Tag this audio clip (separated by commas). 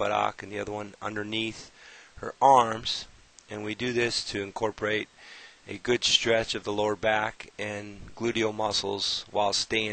Speech